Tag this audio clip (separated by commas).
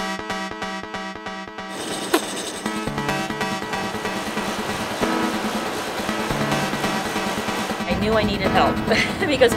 Speech, Music